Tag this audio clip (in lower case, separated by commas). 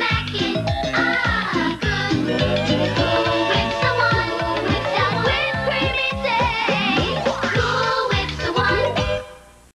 music